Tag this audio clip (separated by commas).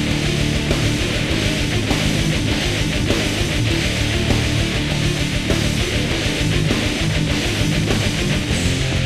Music